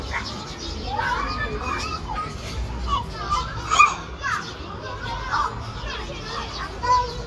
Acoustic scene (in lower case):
park